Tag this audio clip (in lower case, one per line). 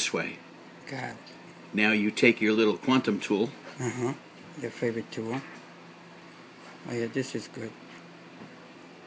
speech